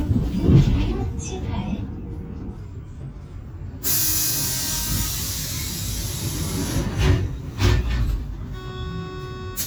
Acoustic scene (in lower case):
bus